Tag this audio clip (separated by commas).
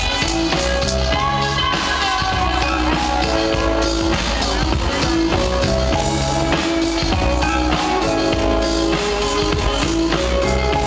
Music, Electronic music, Trance music